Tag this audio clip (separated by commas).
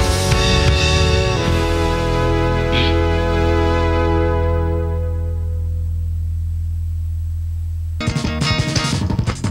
Music